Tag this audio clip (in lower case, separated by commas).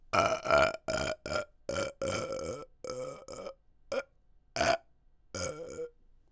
eructation